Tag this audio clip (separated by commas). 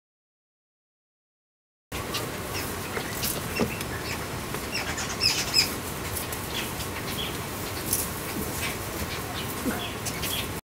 Chirp, Bird, bird song